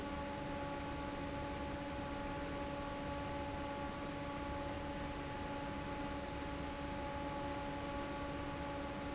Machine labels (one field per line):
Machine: fan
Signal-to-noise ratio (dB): 0 dB